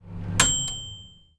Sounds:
Domestic sounds, Microwave oven, Bell

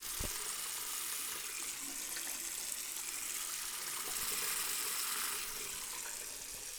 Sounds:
Water, Sink (filling or washing), Water tap, home sounds

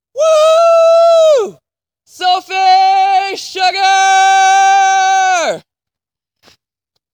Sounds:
Yell, Shout, Human voice

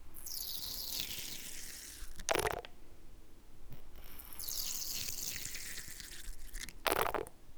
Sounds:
Water, Gurgling

